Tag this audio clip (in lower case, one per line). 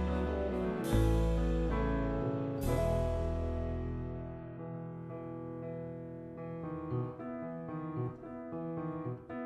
piano